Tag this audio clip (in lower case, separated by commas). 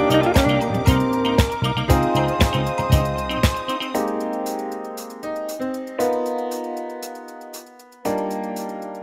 music